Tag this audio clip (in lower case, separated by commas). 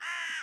animal, bird, wild animals